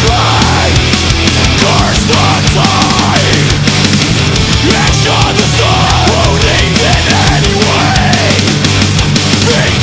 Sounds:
music

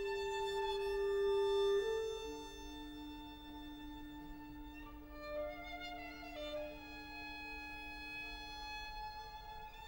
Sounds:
violin, musical instrument, music

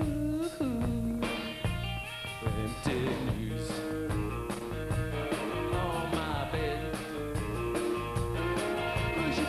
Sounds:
music, singing

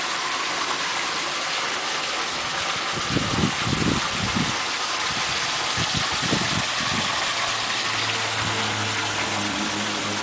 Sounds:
water

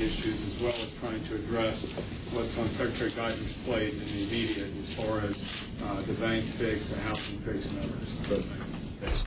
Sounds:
speech

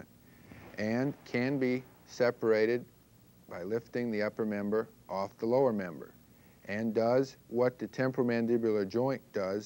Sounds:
speech

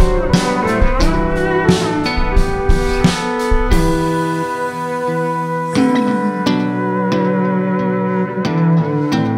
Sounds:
music, slide guitar

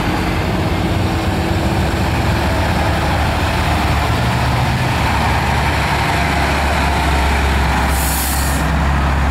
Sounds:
air brake, car, vehicle

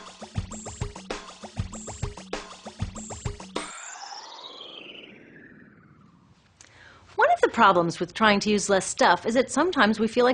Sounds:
music, speech

